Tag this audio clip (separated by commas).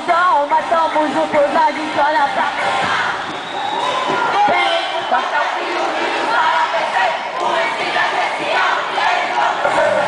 Cheering